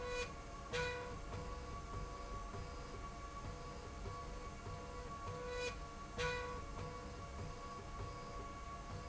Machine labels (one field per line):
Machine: slide rail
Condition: normal